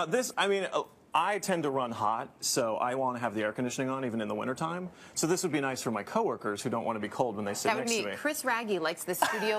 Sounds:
speech

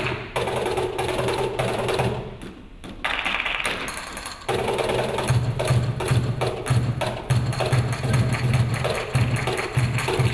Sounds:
flamenco, music

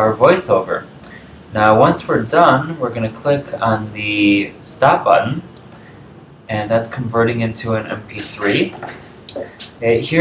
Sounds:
speech

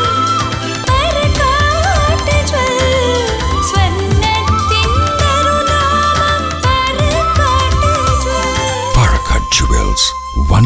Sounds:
jingle (music), music

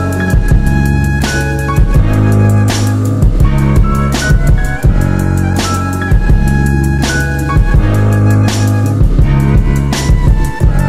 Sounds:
music, theme music

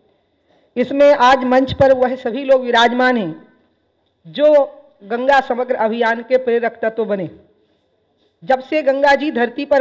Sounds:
female speech, speech, narration

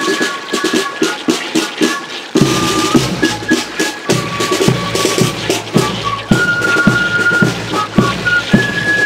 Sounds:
stream, music

